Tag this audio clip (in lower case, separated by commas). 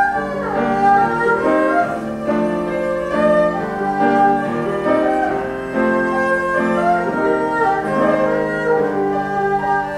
playing erhu